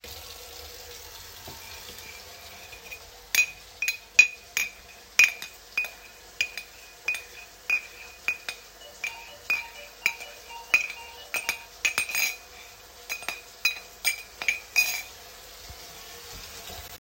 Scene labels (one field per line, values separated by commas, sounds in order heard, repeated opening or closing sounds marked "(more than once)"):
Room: kitchen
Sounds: running water, cutlery and dishes, bell ringing